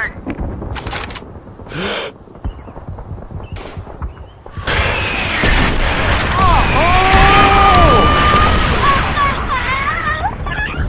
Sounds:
outside, rural or natural

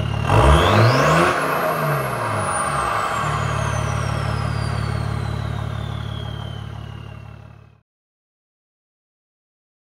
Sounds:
car, vehicle, revving

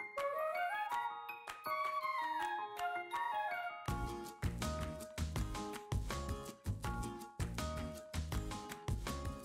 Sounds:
music

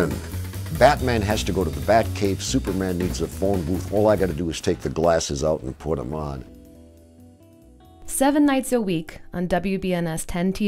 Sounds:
music, speech

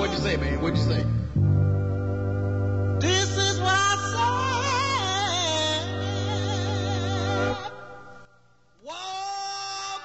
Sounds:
music, speech

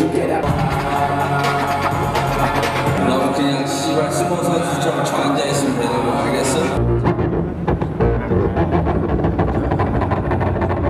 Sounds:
singing, music

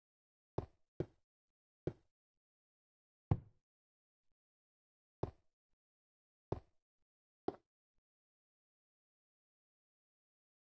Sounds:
inside a large room or hall

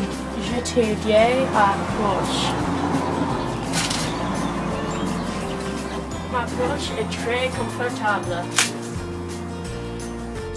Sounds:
speech, music

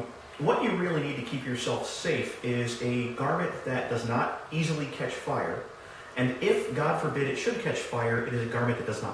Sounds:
inside a large room or hall, speech

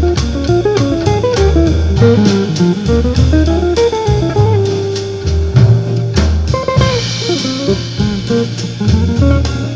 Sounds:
guitar, plucked string instrument, music, electric guitar, strum, acoustic guitar, musical instrument

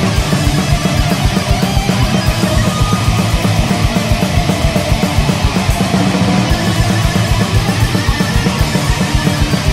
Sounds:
heavy metal, music

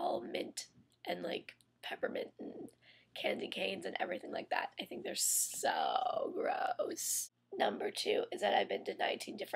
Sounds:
speech

